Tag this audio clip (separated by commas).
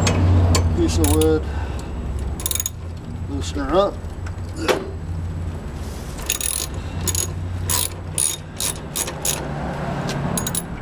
Speech, Vehicle